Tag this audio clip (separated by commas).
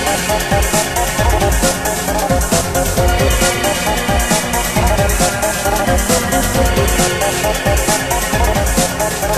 Music